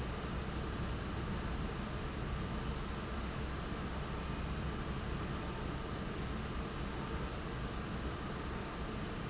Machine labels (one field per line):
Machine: fan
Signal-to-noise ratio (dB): -6 dB